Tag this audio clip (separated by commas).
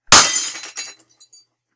Glass, Shatter